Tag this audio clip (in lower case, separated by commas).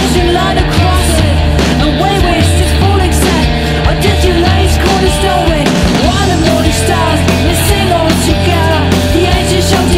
music